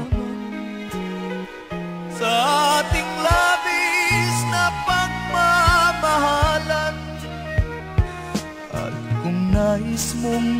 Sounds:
music

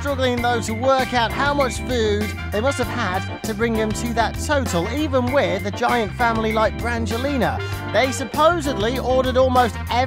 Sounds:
music, speech

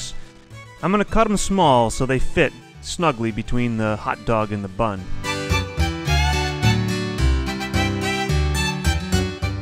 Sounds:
inside a small room, music, speech

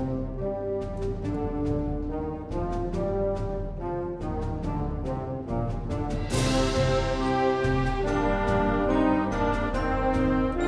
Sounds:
trumpet, theme music, music, musical instrument

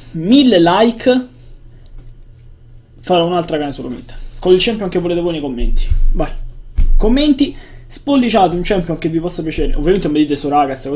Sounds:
speech

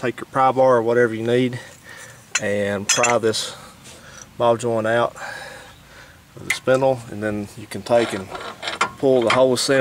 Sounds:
speech, outside, rural or natural

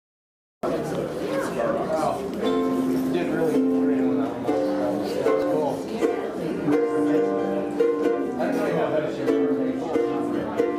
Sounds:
playing ukulele

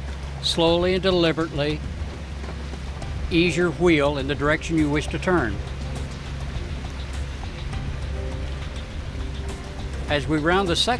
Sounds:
speech, vehicle, music

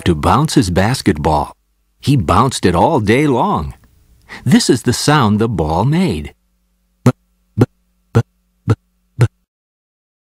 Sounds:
speech

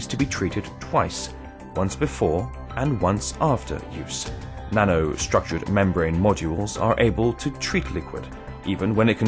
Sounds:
music, speech

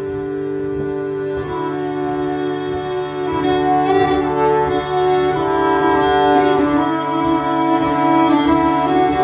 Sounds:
bowed string instrument, accordion, violin

